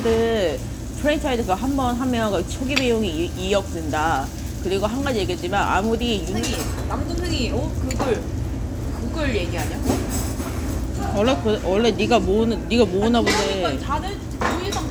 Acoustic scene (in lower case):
crowded indoor space